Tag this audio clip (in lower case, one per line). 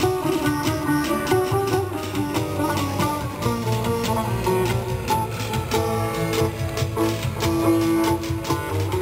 music